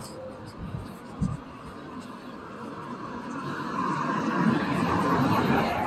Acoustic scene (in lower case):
street